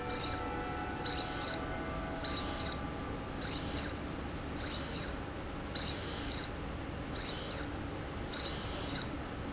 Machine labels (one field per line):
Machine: slide rail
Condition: abnormal